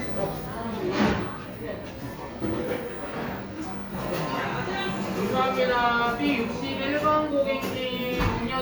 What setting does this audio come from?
cafe